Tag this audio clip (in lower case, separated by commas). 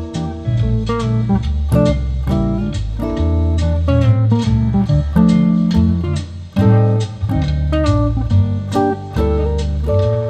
musical instrument, acoustic guitar, music